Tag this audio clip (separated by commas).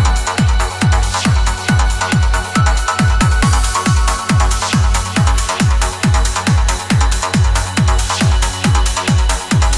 Music